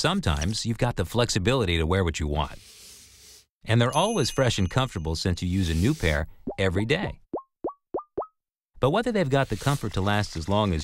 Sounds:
plop, speech

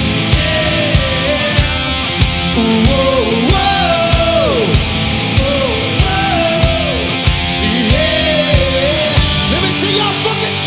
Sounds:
guitar, music, plucked string instrument, electric guitar, musical instrument

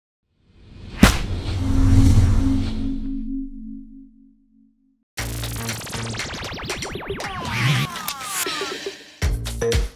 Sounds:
music

